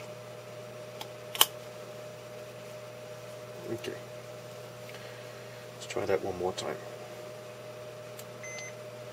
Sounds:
Speech

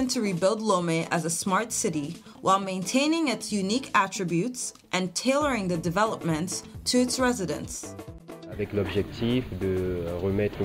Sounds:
Speech, Music

